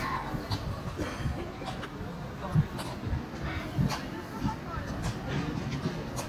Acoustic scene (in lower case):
residential area